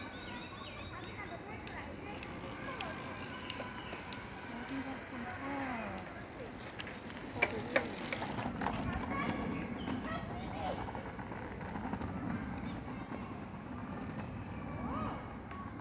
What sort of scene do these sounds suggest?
park